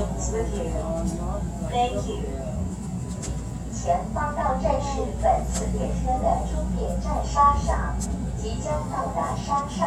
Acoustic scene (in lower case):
subway train